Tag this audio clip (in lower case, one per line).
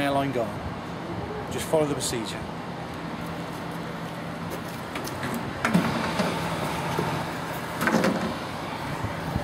speech